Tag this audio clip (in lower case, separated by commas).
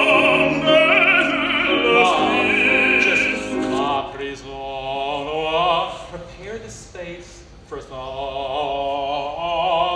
opera, music, speech